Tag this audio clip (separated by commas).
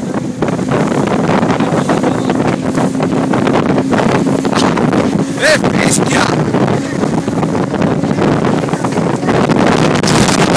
Motorboat, Wind, Wind noise (microphone), Water vehicle